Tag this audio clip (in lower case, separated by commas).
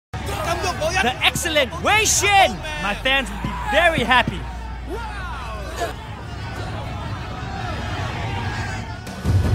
music, shout, speech